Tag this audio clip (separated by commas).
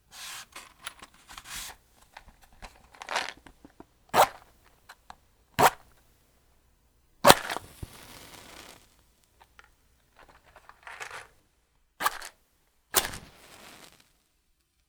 Fire